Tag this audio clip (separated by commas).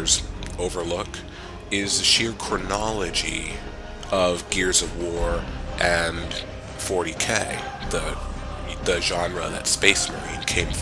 Speech, Music